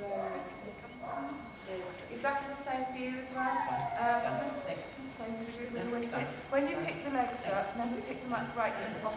Dogs bark and whine as a person speaks